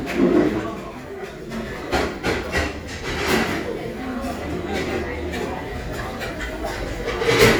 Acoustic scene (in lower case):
crowded indoor space